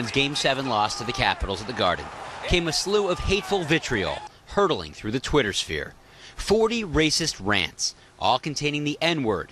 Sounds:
Speech

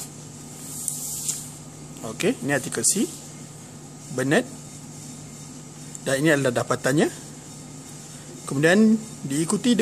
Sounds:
Speech

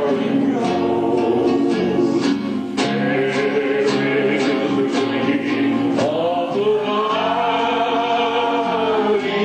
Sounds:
inside a large room or hall, Music, Musical instrument, Singing

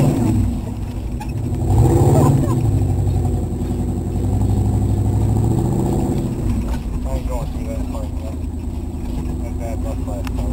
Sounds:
Truck, Speech, Vehicle

